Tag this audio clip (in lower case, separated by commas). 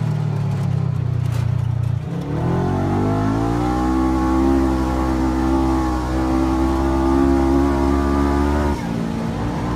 car, auto racing, vehicle